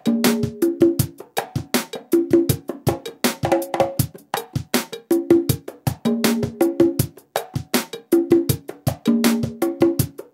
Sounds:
playing congas

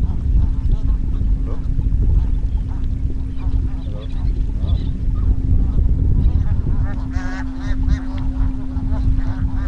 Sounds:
goose honking

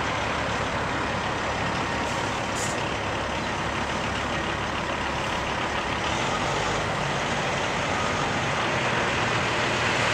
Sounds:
Truck, Vehicle

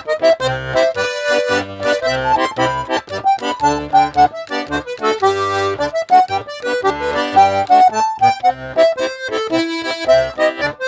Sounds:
Music, Musical instrument, playing accordion, Accordion

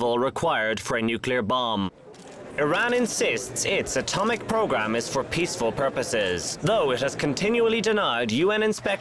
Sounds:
Speech

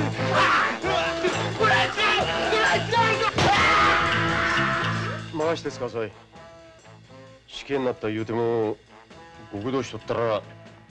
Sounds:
Speech, Music

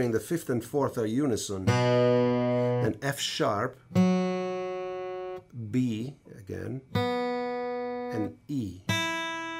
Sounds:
Music, Guitar, Musical instrument, Speech, Plucked string instrument

